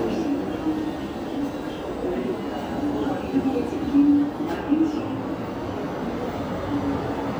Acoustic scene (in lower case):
subway station